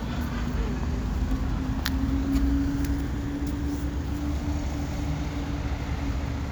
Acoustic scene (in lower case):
street